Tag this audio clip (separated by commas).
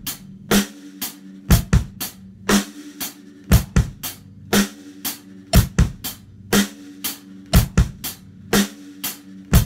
playing bass drum